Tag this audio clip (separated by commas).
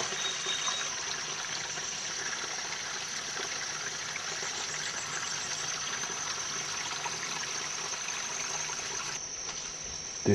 Water